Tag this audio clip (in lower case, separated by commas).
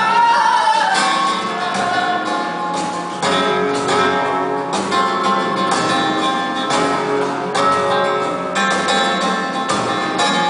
music, guitar, strum, flamenco, musical instrument, plucked string instrument, electric guitar